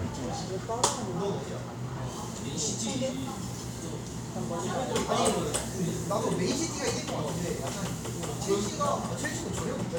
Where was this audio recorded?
in a cafe